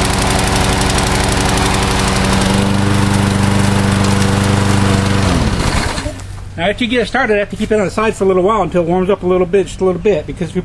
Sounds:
Lawn mower, Speech

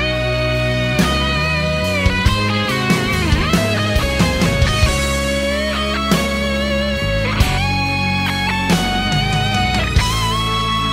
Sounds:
Musical instrument, Guitar, Music, Plucked string instrument

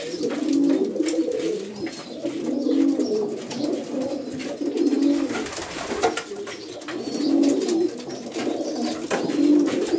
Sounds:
dove, inside a small room, Bird

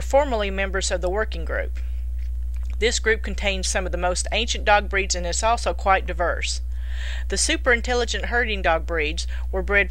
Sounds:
Speech

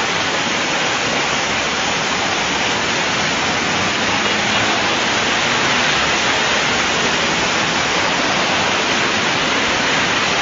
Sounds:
Vehicle, Bus

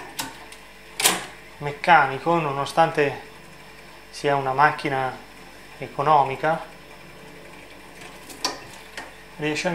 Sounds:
Camera, Speech, Single-lens reflex camera

